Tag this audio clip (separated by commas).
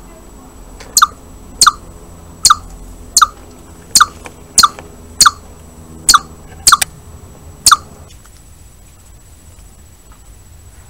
chipmunk chirping